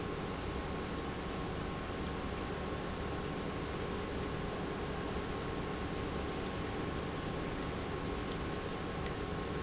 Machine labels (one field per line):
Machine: pump